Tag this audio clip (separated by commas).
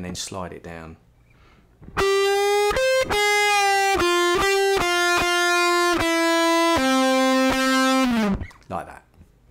Music, inside a small room, Musical instrument, Plucked string instrument, Speech, Guitar